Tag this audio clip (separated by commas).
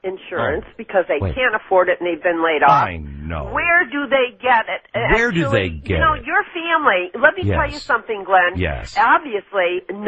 Speech